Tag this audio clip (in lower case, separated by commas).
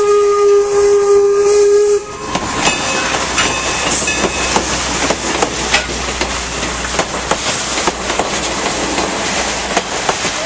steam whistle, steam, hiss